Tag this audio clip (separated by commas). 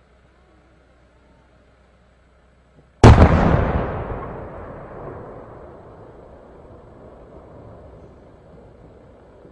lighting firecrackers